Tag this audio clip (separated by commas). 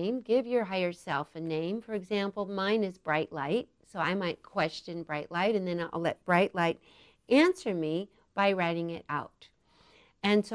Speech